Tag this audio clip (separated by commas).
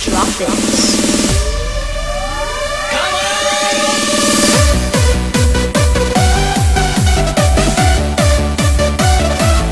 Blues, Music, Soundtrack music, Speech